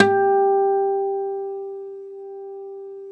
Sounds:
Musical instrument, Plucked string instrument, Acoustic guitar, Guitar, Music

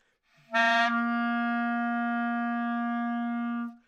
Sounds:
woodwind instrument, Musical instrument, Music

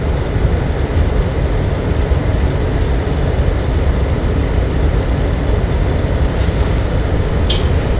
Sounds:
Fire

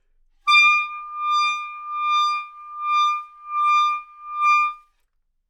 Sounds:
Music, Musical instrument, Wind instrument

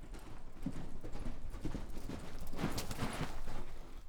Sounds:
Animal, livestock

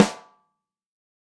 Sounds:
Snare drum, Musical instrument, Percussion, Music, Drum

